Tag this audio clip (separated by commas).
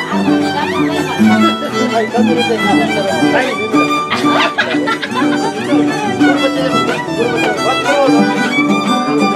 Violin, Musical instrument, Speech, Music